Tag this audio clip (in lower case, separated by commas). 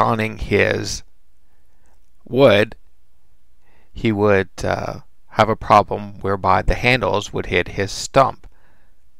speech